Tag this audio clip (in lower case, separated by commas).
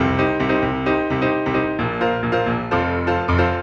keyboard (musical), piano, musical instrument, music